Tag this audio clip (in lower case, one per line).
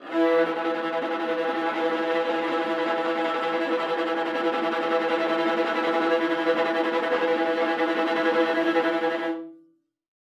music
musical instrument
bowed string instrument